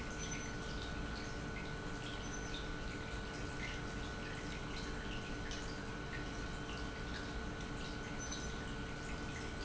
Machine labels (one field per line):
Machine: pump